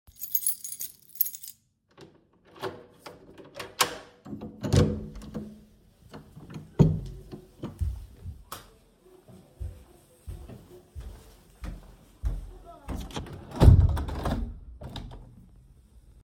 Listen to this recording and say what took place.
I came home, stood in the hallway, took out my keys, opened the door, turned on the light, went to the window and closed it.